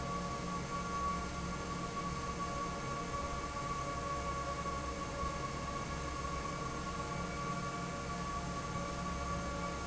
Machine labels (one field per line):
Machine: fan